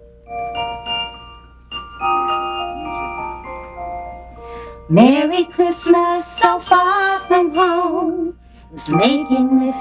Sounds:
glockenspiel, mallet percussion, xylophone

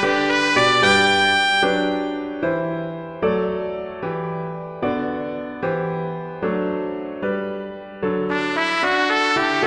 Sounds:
jazz, music, trumpet, musical instrument

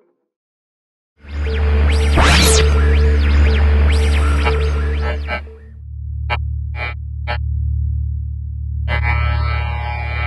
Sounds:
musical instrument, music

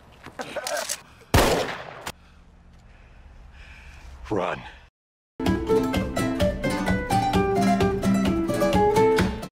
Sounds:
speech, music

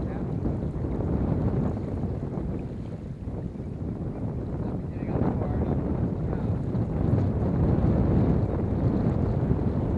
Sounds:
speech

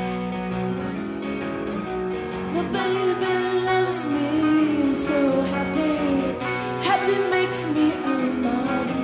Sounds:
music

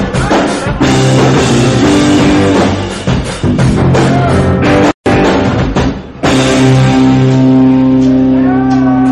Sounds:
rimshot, music

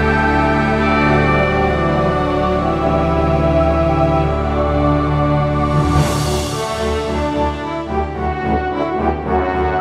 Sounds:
music, soul music

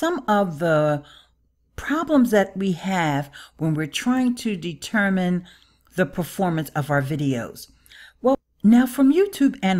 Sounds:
monologue

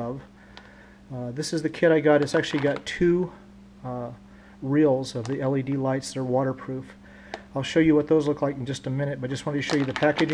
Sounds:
speech

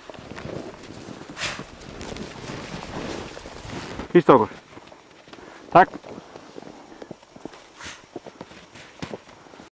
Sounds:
speech

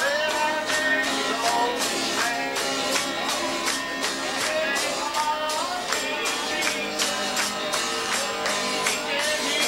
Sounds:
music

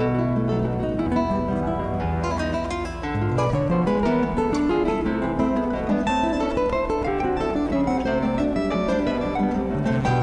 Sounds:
musical instrument, guitar, music, strum, electric guitar, plucked string instrument

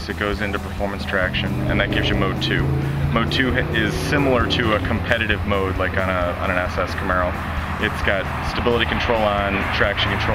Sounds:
speech

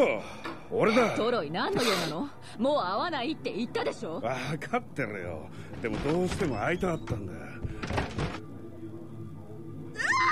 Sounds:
speech

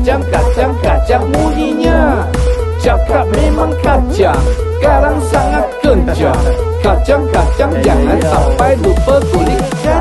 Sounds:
speech, music

